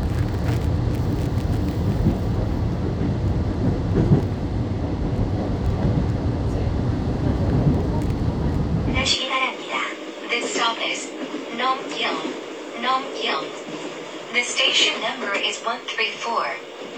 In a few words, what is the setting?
subway train